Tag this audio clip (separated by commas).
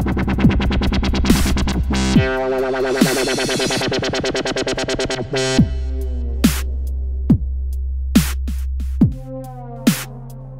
Dubstep, Electronic music, Music, Drum machine